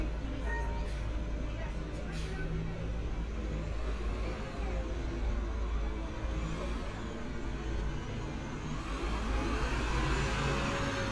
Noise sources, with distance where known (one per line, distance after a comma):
large-sounding engine, near
person or small group talking